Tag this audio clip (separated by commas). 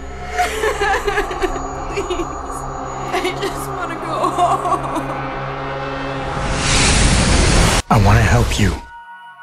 Music, Speech, inside a small room